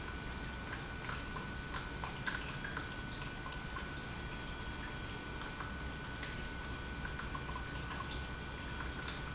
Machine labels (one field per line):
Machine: pump